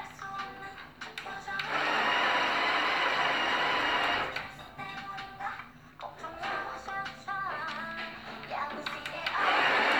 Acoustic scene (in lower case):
cafe